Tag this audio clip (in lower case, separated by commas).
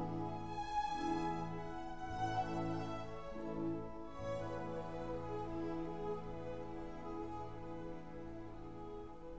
music, sad music